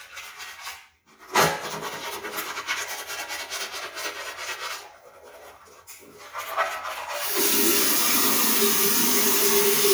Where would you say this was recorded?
in a restroom